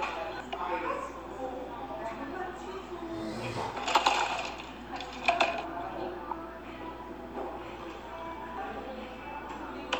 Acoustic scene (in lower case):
cafe